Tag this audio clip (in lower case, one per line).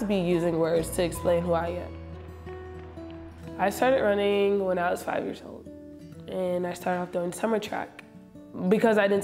speech
music